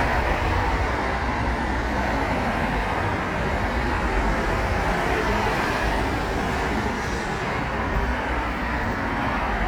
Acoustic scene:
street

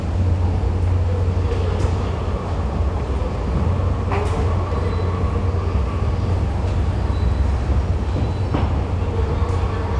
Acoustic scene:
subway station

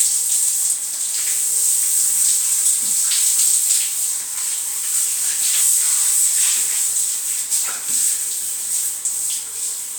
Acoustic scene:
restroom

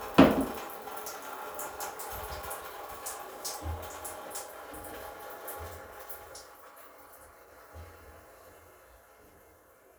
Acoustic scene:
restroom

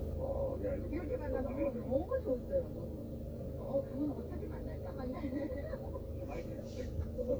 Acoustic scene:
car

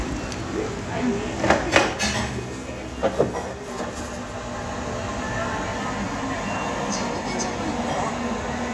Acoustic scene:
crowded indoor space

